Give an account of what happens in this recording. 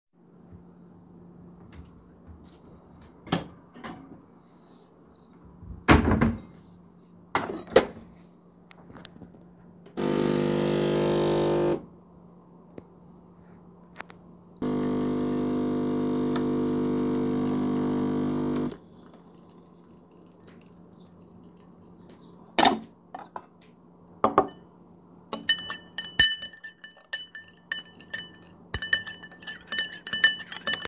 I opened the cabinet took a cup, close it, turn on coffee machine and then stirred the coffee in cup with a spoon